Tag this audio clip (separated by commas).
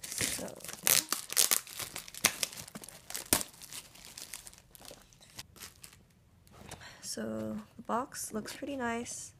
Speech, Tearing